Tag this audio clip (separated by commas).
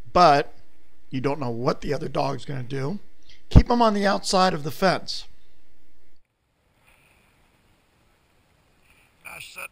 Speech